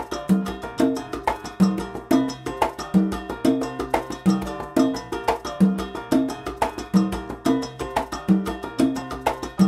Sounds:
playing congas

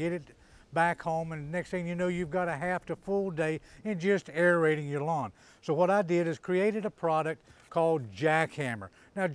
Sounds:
speech

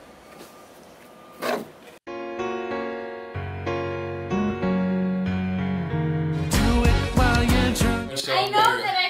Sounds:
speech, music

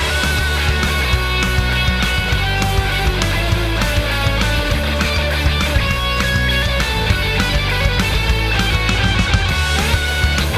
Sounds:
music

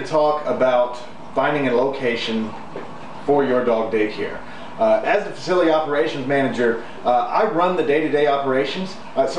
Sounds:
speech

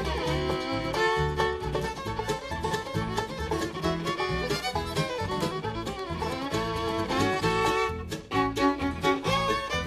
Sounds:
violin, musical instrument, music

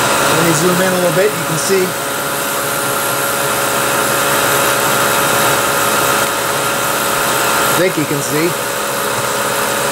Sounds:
lathe spinning

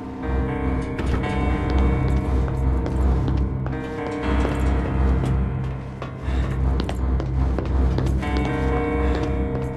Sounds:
music, inside a large room or hall

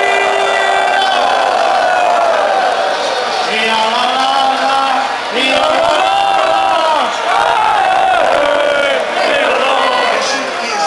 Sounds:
male singing, choir, speech

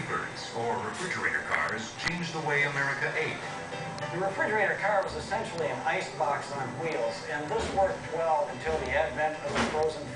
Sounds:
speech, music

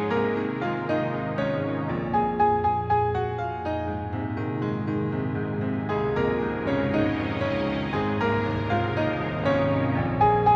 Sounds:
music

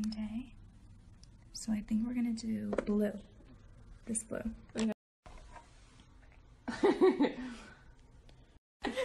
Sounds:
speech

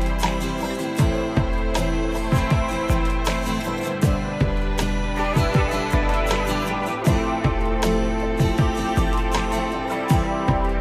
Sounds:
music

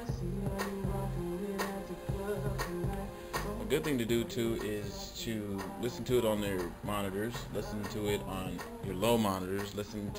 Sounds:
speech, music

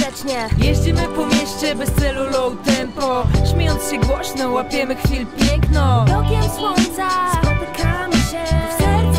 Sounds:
music, rhythm and blues

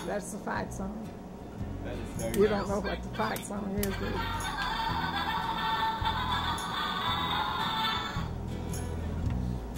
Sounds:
music, speech

